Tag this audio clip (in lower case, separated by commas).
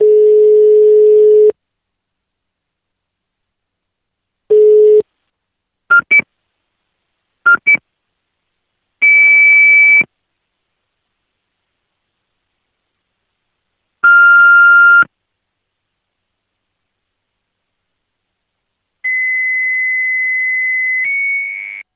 telephone, alarm